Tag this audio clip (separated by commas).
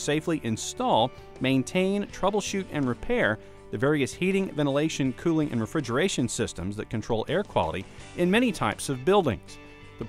Music, Speech